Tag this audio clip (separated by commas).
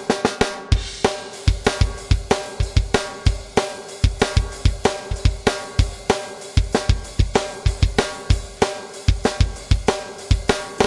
Musical instrument, Drum, Music, Drum kit